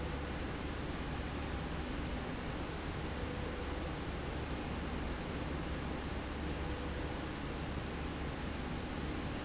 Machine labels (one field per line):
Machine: slide rail